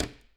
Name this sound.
wooden cupboard closing